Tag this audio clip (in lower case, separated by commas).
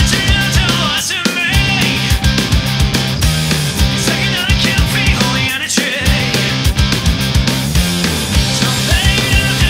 music